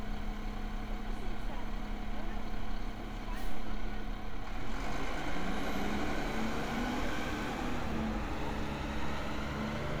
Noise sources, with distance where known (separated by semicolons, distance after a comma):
engine of unclear size